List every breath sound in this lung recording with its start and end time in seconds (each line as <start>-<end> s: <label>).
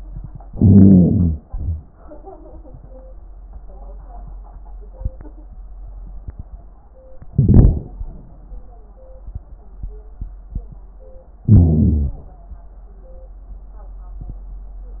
0.44-1.38 s: inhalation
1.45-1.84 s: exhalation
7.34-7.91 s: inhalation
11.45-12.16 s: inhalation